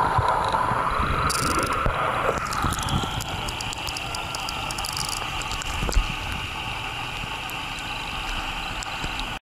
Insects and frogs call out, water gurgles